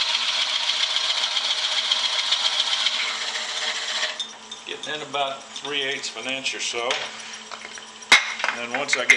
A metal tool spinning along with a man talking and metal parts falling off